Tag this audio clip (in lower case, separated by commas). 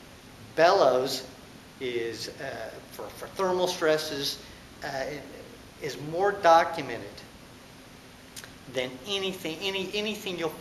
speech